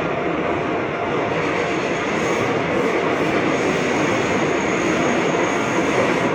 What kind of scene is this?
subway train